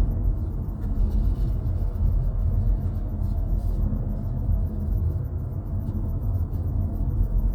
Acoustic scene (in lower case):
car